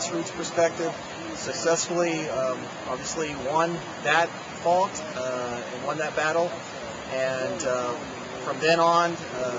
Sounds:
Speech

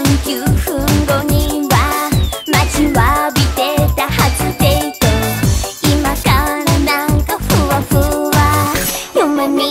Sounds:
Music of Asia, Music

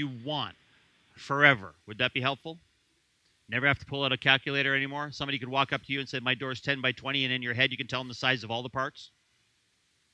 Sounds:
Speech

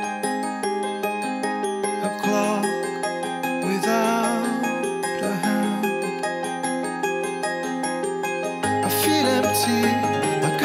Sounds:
Music

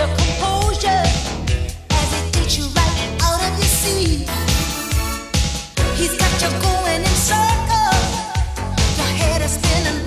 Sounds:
Music

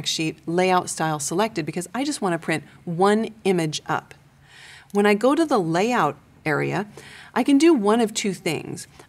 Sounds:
Speech

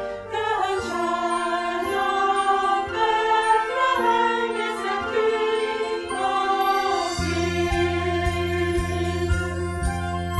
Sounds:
Bowed string instrument, Music, Classical music, Singing, Choir

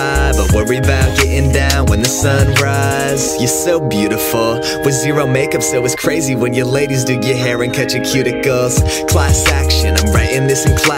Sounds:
Music

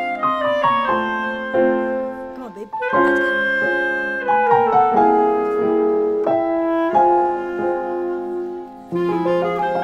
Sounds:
Music, Speech

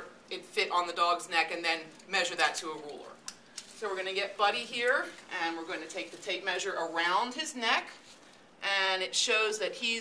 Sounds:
Speech

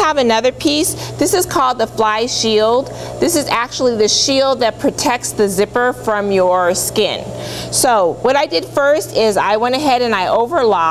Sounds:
Speech

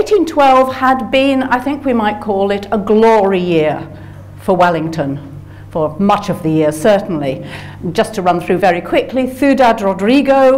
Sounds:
Speech

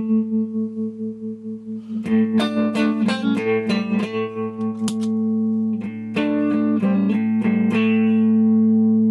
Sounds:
Guitar, Effects unit, Musical instrument, Music

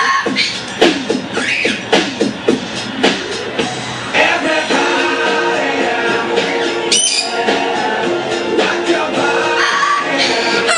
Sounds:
Soundtrack music, Music

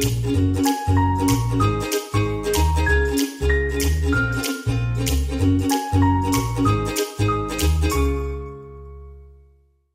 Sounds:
Music

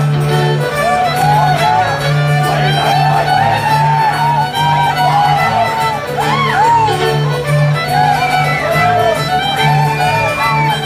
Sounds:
Musical instrument, Music, Violin

